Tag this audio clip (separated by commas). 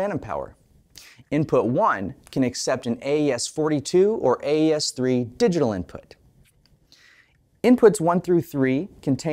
Speech